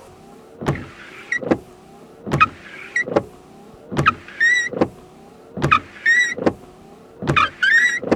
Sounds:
vehicle, motor vehicle (road), car

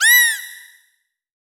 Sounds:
animal

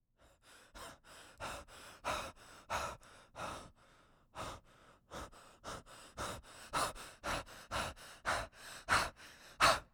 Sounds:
respiratory sounds, breathing

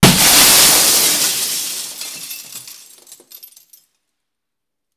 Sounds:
glass, shatter

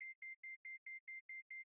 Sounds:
alarm

